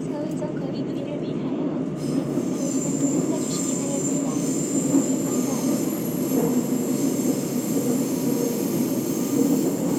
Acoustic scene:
subway train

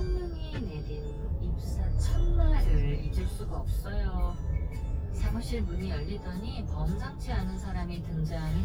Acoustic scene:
car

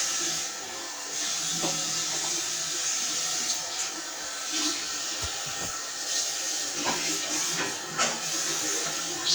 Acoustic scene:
restroom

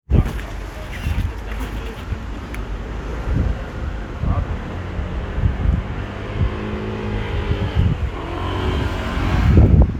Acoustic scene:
street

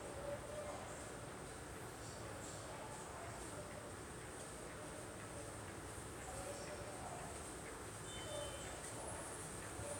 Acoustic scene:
subway station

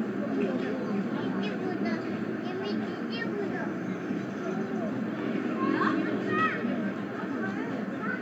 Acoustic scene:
residential area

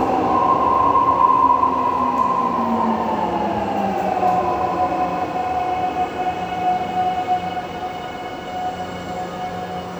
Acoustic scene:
subway station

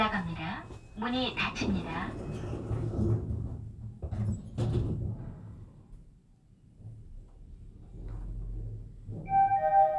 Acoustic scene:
elevator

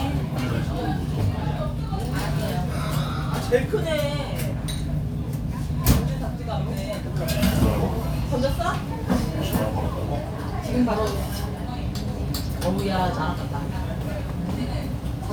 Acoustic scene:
crowded indoor space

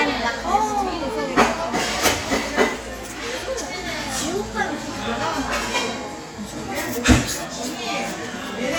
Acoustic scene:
cafe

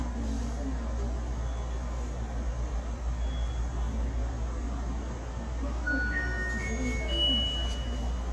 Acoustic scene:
subway station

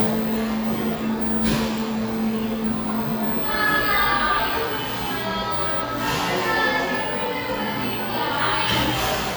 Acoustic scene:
cafe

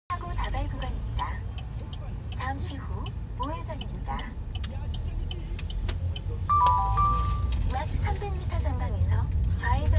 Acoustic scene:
car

